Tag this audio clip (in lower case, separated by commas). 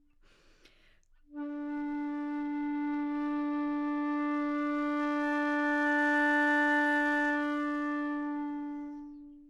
music, musical instrument, woodwind instrument